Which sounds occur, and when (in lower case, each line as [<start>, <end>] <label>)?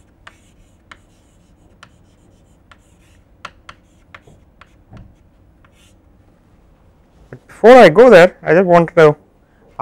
[0.00, 9.81] mechanisms
[0.28, 3.20] writing
[3.43, 5.30] writing
[4.24, 4.52] generic impact sounds
[4.93, 5.16] generic impact sounds
[5.59, 5.93] writing
[7.25, 7.47] generic impact sounds
[7.29, 8.29] man speaking
[8.46, 9.20] man speaking
[9.29, 9.74] breathing